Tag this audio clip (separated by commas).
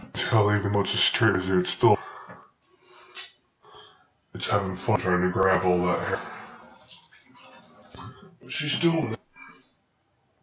Speech